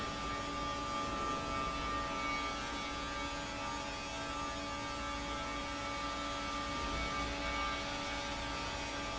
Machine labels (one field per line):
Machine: fan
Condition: normal